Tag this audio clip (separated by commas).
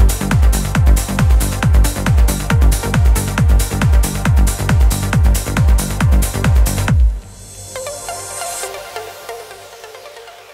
Music, Trance music, Electronic music